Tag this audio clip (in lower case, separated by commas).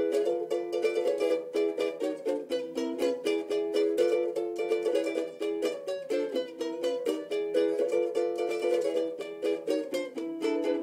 musical instrument, plucked string instrument, ukulele, music